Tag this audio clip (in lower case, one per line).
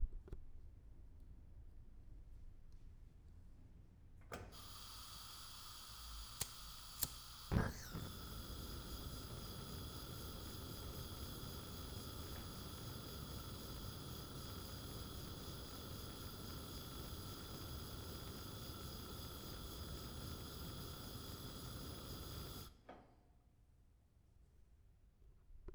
fire